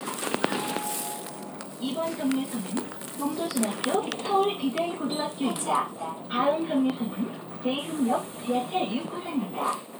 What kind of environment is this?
bus